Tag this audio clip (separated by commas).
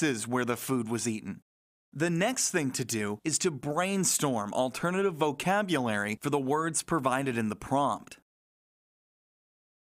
Speech